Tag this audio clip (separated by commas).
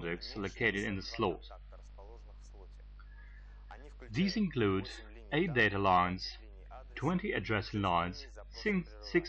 Speech